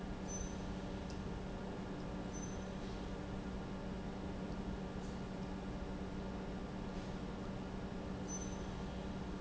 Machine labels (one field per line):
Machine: pump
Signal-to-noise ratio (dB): 0 dB